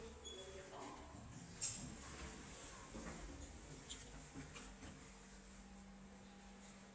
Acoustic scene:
elevator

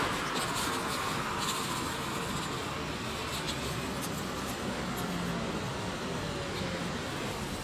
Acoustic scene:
street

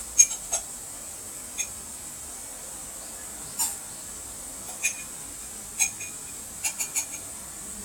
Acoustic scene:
kitchen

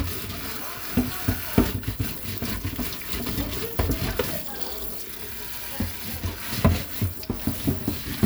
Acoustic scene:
kitchen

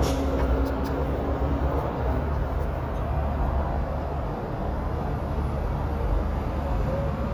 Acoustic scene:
street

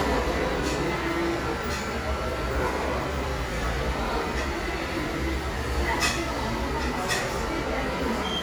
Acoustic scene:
crowded indoor space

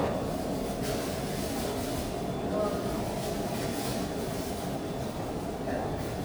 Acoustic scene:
subway station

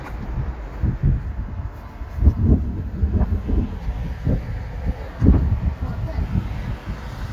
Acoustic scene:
street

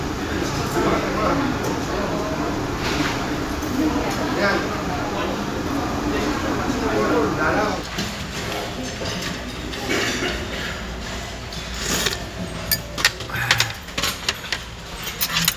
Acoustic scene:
restaurant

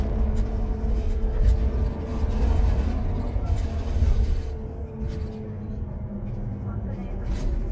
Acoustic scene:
bus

